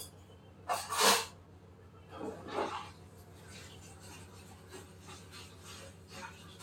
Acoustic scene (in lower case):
kitchen